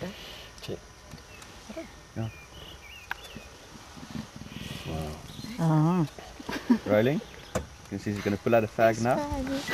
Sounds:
Speech, Animal

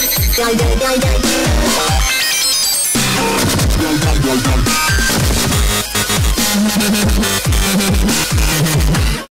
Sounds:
Music, Dubstep

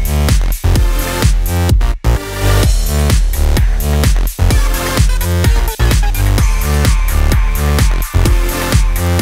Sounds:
Music

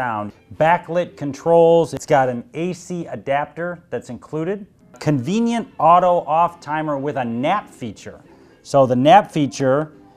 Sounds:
Speech

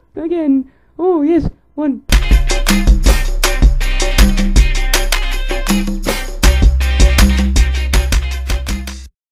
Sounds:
Music, Speech

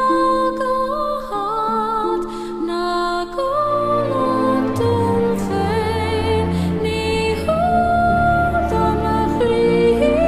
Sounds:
Music

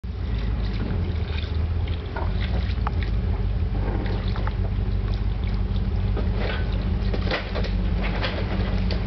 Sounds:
Boat, Vehicle

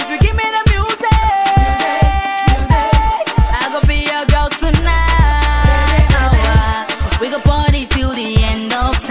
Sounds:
Pop music, Music, Exciting music, Disco, Happy music

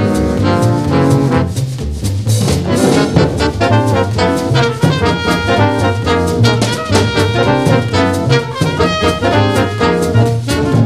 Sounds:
Brass instrument, playing saxophone, Trombone, Saxophone

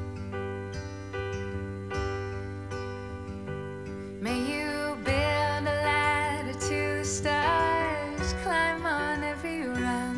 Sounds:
Music, Tender music

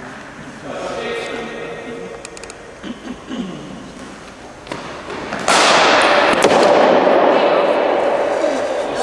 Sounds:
inside a large room or hall, Speech

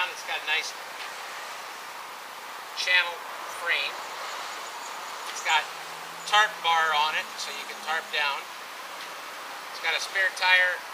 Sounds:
Speech

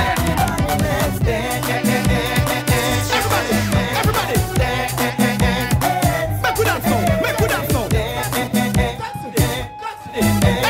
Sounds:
Music, Hip hop music, Reggae

